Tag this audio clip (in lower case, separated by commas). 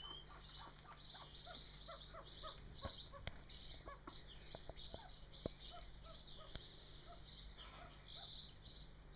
pheasant crowing